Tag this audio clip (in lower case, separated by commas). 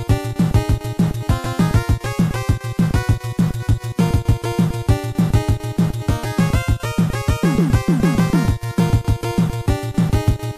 music, video game music